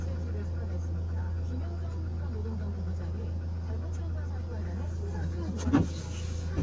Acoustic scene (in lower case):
car